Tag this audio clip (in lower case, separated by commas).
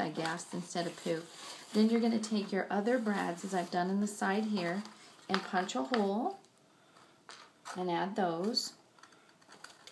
speech